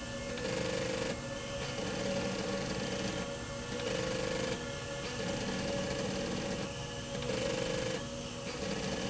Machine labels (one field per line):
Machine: slide rail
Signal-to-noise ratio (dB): -6 dB